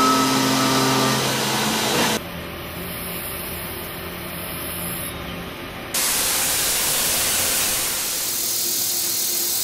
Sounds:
Tools

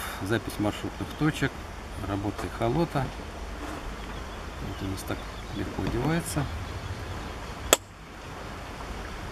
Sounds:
Speech, Chirp

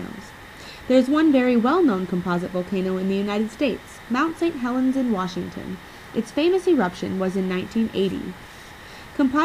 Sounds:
Speech

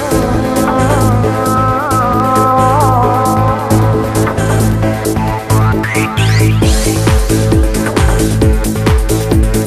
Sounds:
Music

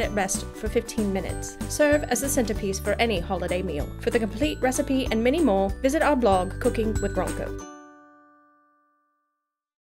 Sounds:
Speech, Music

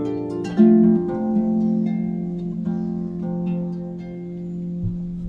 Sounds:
playing harp

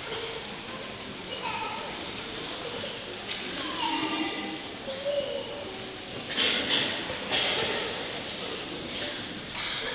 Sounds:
Speech

